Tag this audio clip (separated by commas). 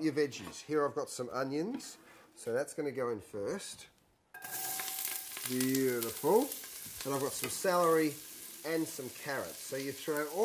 Speech